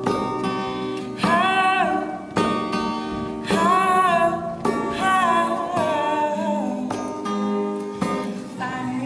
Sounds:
female singing, music

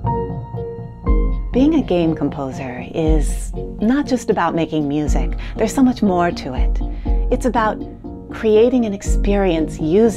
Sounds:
music, speech

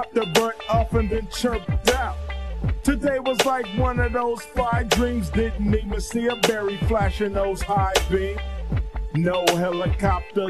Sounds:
music, hip hop music, funk

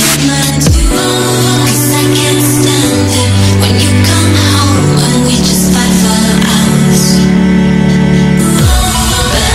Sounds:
electronic music, music, dubstep

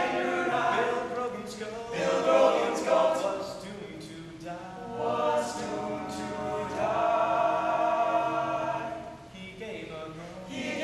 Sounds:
choir, male singing

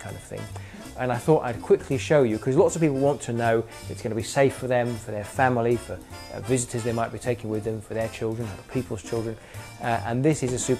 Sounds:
music, speech, rock and roll

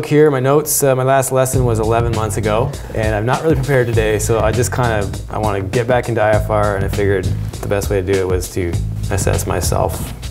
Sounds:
music, speech

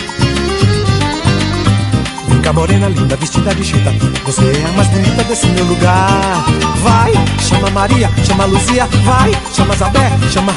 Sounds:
afrobeat, music of africa

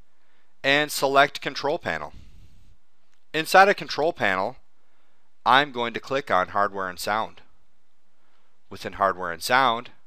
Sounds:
speech

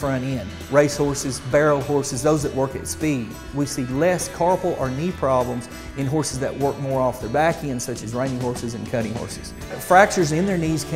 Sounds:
music, speech

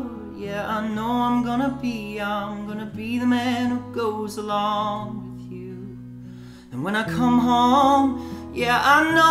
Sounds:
music

